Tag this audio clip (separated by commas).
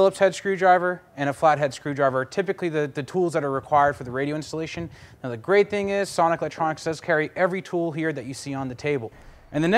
Speech